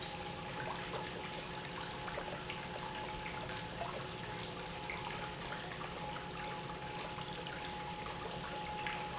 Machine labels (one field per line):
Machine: pump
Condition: normal